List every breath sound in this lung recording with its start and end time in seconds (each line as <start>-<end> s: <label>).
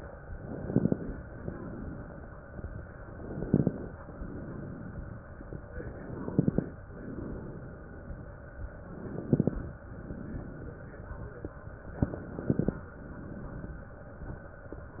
0.44-1.24 s: inhalation
0.44-1.24 s: crackles
1.33-2.13 s: exhalation
3.17-3.97 s: inhalation
3.17-3.97 s: crackles
4.17-5.14 s: exhalation
5.98-6.78 s: inhalation
5.98-6.78 s: crackles
7.09-8.06 s: exhalation
8.94-9.73 s: inhalation
8.94-9.73 s: crackles
9.90-10.87 s: exhalation
12.14-12.94 s: inhalation
12.14-12.94 s: crackles
13.00-13.97 s: exhalation